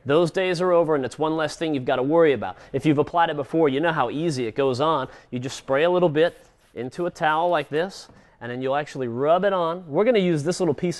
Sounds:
Speech

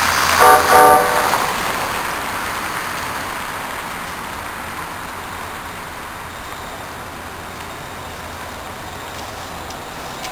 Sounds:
outside, urban or man-made, Vehicle, Toot, Train

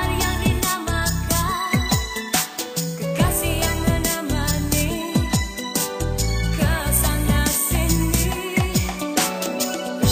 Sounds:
Music, Singing

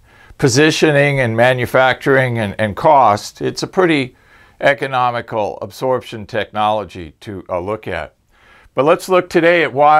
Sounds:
Speech

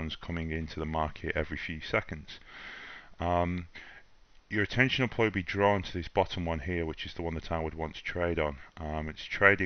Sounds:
Speech

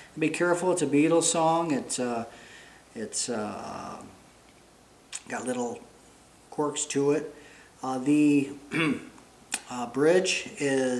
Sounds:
Speech

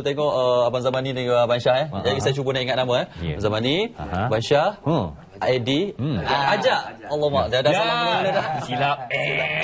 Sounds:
Speech

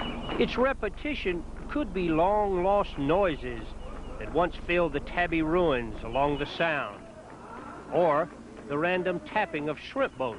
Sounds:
Speech

